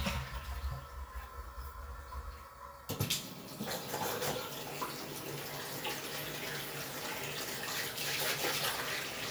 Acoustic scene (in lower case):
restroom